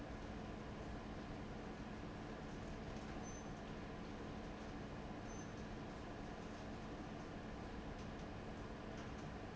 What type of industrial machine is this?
fan